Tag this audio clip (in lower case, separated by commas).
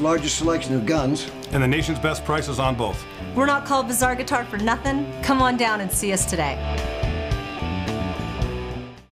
guitar, musical instrument, speech, music